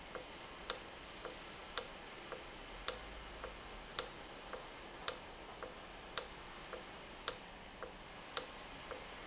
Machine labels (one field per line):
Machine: valve